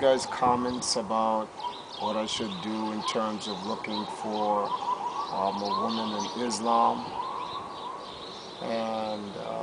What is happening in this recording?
An adult male speaks as birds chirp and a siren whoops far away